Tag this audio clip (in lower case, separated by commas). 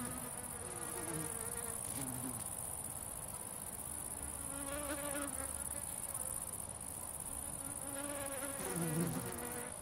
housefly, bee or wasp, insect, mosquito, cricket